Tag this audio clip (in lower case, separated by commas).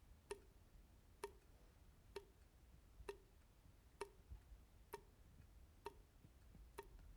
faucet, liquid, sink (filling or washing), drip, domestic sounds